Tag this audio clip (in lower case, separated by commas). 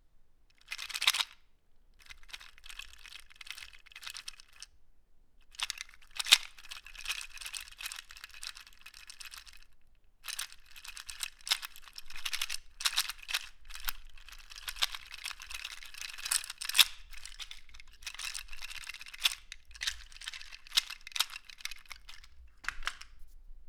rattle